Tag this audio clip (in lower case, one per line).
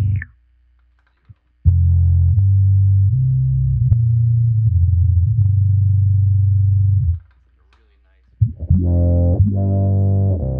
synthesizer
effects unit